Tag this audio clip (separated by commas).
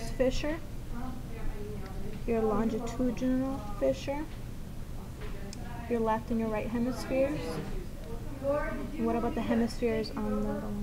Speech